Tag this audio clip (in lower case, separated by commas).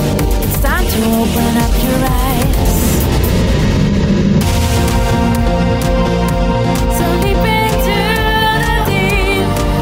music